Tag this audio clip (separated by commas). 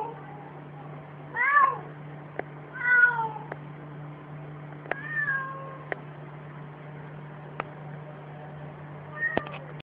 Domestic animals, Cat, Meow, cat meowing, Animal